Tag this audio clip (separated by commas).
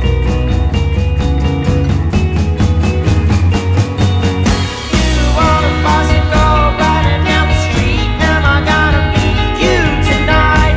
Music